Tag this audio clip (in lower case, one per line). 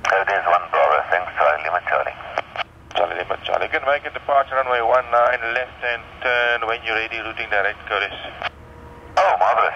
speech